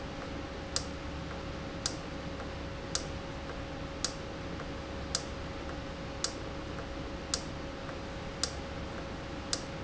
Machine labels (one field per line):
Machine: valve